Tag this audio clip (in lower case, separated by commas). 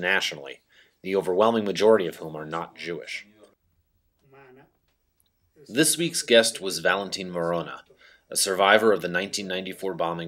speech